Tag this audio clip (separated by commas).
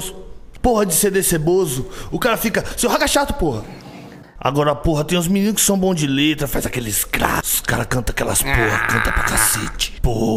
Speech